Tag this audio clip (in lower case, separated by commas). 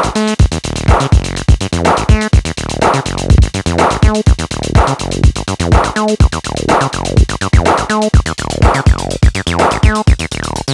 drum machine